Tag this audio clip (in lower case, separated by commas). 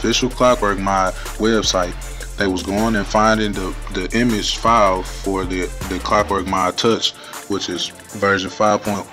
music, speech